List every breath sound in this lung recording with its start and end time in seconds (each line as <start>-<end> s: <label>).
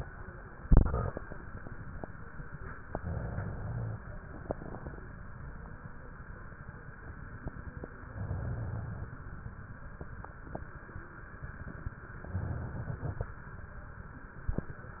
2.90-4.00 s: inhalation
8.05-9.15 s: inhalation
12.23-13.34 s: inhalation